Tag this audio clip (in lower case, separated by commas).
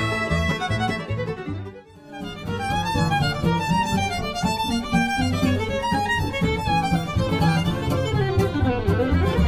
bowed string instrument, fiddle